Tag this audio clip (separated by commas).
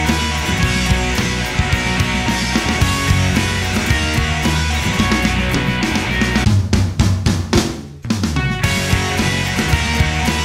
Music